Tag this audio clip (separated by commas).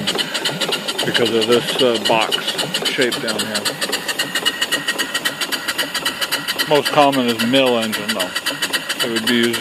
Steam, Speech, Engine